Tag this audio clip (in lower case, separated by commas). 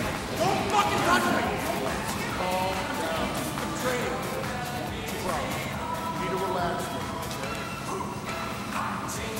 speech, music